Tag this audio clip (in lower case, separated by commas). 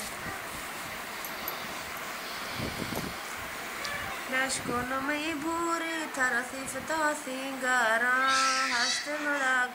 inside a small room